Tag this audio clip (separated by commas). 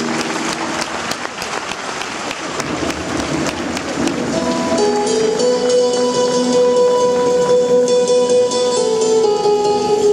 Music